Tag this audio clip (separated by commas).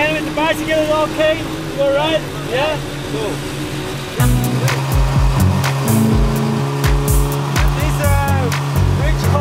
Music, Speech